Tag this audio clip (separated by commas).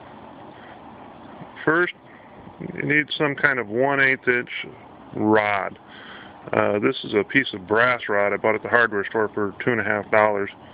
Speech